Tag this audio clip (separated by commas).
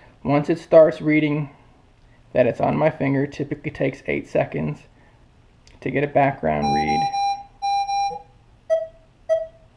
Speech, Buzzer, inside a small room